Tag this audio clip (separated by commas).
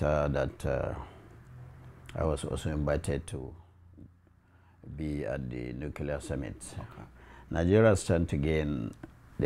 Speech, inside a small room